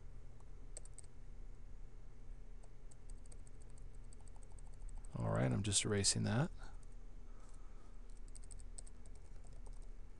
A person speaking while typing on a keyboard